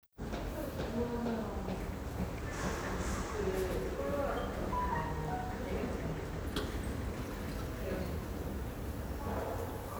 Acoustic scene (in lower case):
elevator